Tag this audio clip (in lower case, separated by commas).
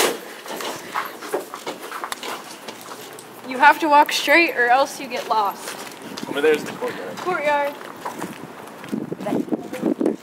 speech